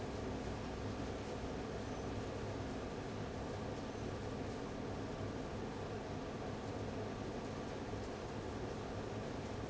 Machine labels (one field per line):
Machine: fan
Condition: abnormal